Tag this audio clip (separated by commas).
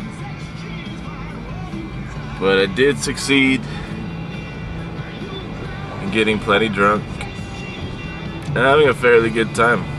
Music, Speech